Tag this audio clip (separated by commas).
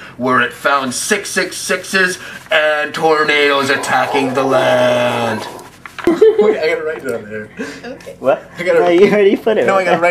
Speech